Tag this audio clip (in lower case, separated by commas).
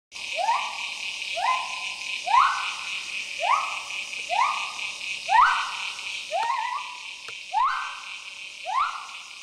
gibbon howling